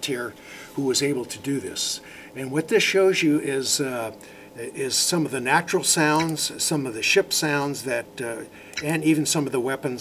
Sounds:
Speech

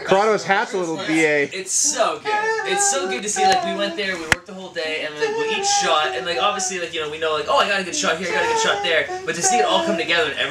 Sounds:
Speech

